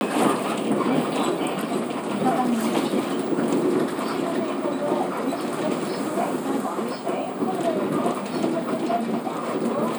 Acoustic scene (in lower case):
bus